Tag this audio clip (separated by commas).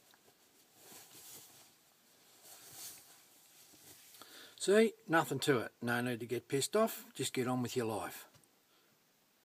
Speech